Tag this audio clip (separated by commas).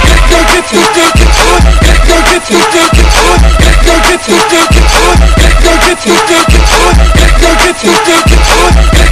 Music